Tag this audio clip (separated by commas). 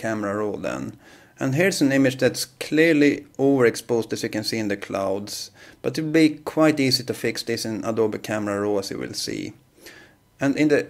Speech